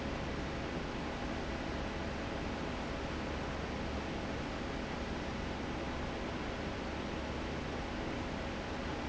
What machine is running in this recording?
fan